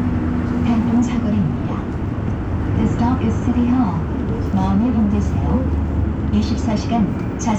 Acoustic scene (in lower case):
bus